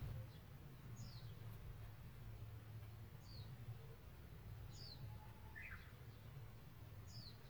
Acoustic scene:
park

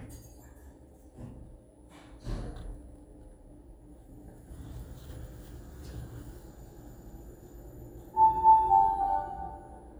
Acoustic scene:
elevator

